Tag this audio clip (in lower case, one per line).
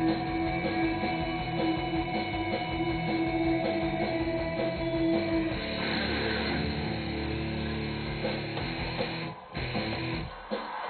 music
bass guitar
plucked string instrument
guitar
playing bass guitar
musical instrument
strum